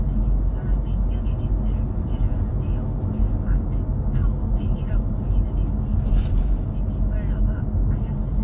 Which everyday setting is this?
car